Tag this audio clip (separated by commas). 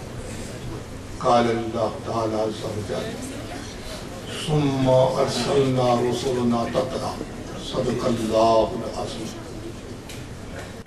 man speaking, monologue, Speech